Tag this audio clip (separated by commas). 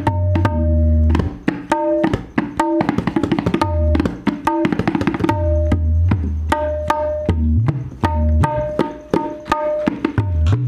playing tabla